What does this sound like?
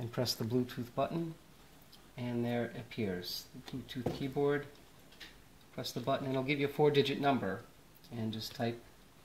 Someone is giving a demonstration of a computer keyboard